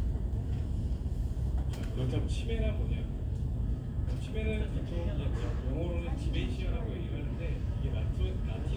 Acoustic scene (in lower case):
crowded indoor space